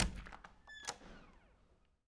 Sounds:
Squeak

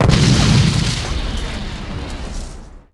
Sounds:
Explosion

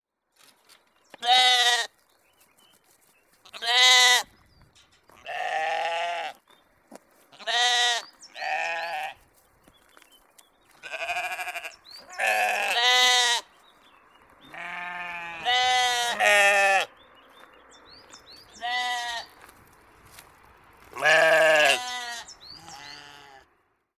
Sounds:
livestock, Animal

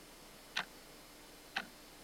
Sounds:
Tick-tock, Mechanisms, Clock

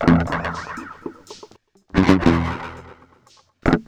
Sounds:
Musical instrument, Guitar, Plucked string instrument, Music

